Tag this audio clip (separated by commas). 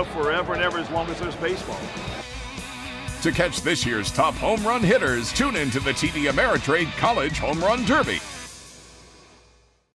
Music, Speech